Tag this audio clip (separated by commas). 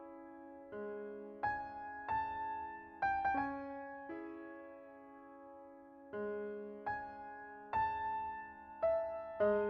Music